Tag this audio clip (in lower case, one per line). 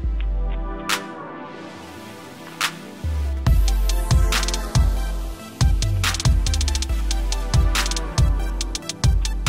outside, rural or natural
bird